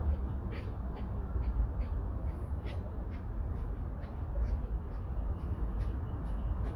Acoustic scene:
park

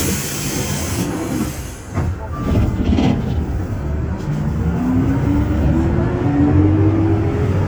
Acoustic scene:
bus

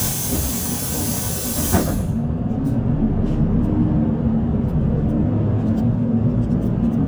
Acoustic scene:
bus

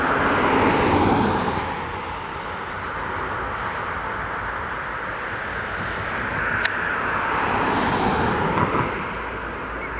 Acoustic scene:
street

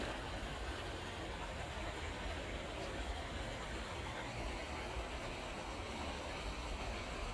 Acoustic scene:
park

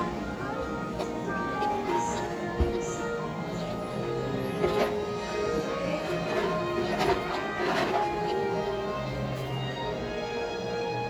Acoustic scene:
cafe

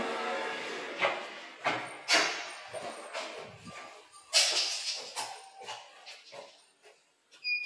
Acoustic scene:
elevator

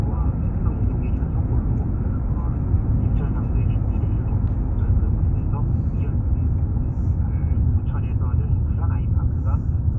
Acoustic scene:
car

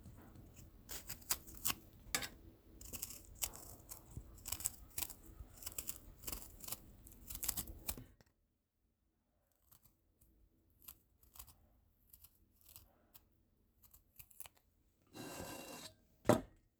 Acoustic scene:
kitchen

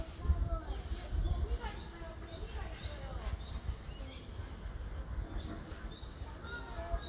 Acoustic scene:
park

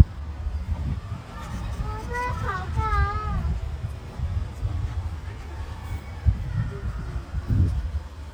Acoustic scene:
residential area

